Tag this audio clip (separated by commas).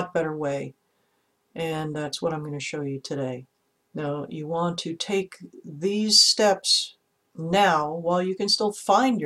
Speech